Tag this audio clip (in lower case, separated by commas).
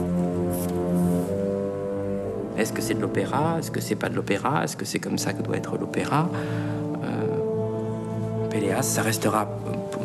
music, speech